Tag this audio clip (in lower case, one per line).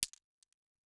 glass